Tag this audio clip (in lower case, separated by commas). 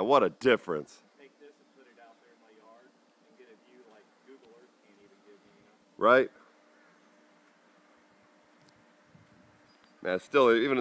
outside, urban or man-made, speech